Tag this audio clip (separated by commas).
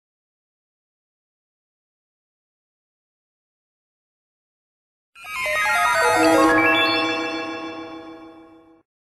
Music